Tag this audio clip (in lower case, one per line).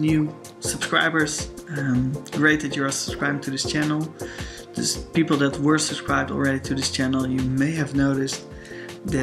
music
speech